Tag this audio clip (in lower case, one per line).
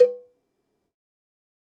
bell
cowbell